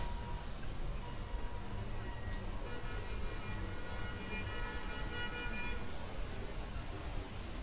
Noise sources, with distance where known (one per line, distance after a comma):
car horn